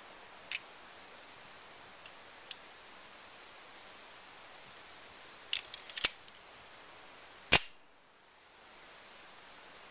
Hissing is ongoing in the background while several metal scrapes and clicks occur followed by the beginning of a gunshot